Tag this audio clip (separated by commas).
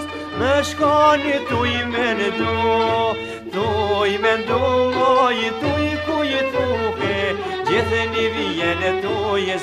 Music